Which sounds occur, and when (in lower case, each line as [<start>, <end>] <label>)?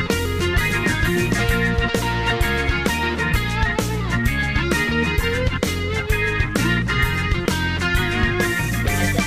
[0.00, 9.25] music